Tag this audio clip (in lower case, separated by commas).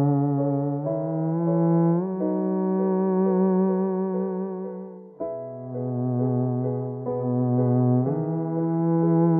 playing theremin